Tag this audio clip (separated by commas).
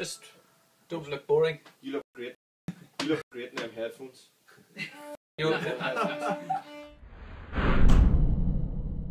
Speech, Music, inside a small room